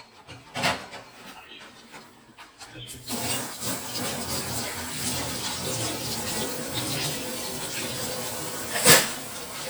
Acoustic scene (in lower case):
kitchen